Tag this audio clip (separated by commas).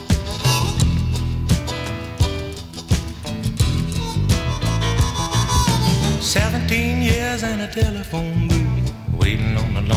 Music